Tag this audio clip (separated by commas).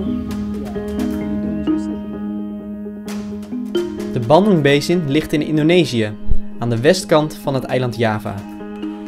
Speech, Music